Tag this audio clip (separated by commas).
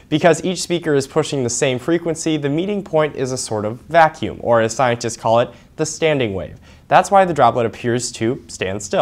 Speech